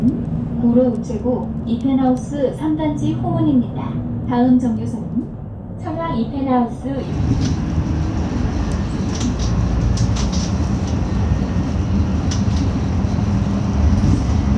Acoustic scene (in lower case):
bus